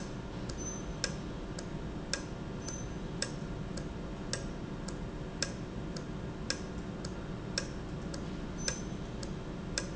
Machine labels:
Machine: valve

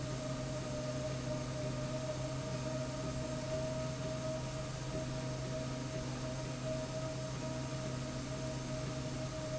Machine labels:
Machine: slide rail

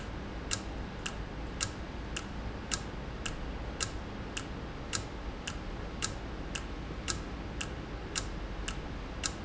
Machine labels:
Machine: valve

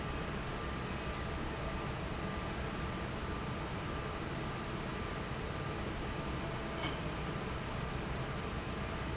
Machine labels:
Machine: fan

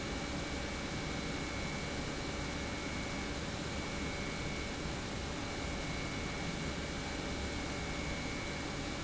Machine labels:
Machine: pump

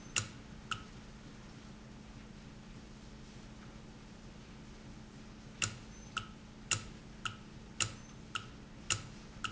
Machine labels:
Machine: valve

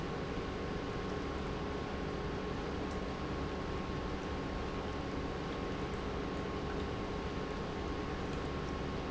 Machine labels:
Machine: pump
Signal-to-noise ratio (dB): -6 dB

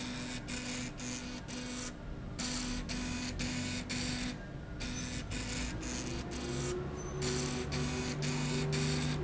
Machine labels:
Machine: slide rail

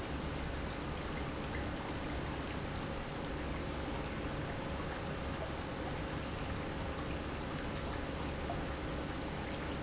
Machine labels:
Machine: pump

